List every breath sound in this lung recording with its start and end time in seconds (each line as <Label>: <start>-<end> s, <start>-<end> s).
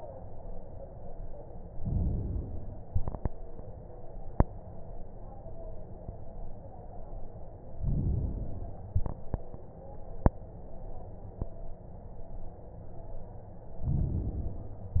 Inhalation: 1.73-2.79 s, 7.79-8.95 s, 13.83-14.99 s